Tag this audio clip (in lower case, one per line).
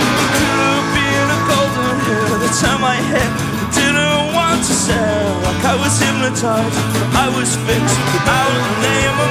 music